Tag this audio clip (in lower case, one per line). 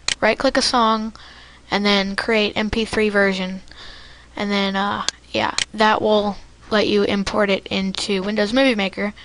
speech